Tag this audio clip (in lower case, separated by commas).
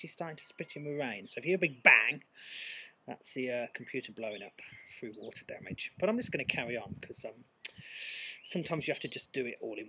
speech